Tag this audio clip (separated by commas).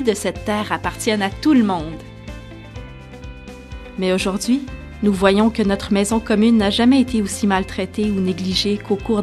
Music, Speech